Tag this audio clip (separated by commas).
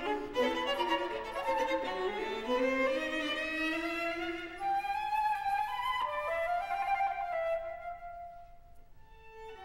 Musical instrument, Violin, Music, Flute